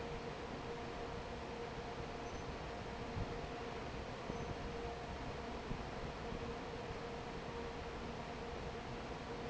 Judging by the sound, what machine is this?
fan